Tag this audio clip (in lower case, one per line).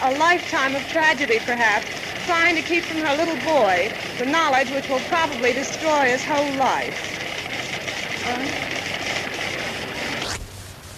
speech